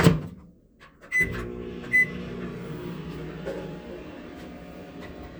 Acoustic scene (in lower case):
kitchen